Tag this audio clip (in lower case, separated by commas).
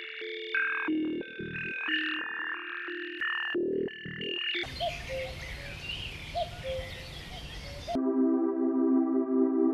animal, new-age music, music